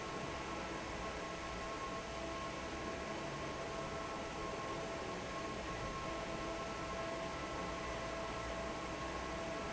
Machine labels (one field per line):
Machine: fan